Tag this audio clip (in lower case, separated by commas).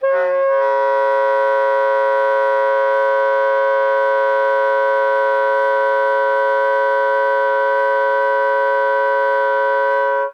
musical instrument, woodwind instrument, music